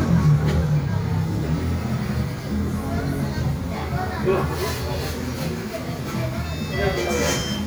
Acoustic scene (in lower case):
cafe